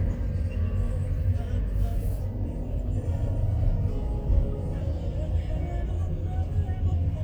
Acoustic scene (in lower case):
car